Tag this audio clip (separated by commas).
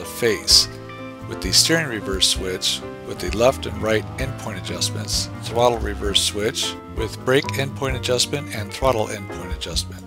Music, Speech